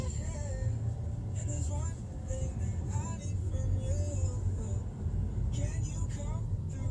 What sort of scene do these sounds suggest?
car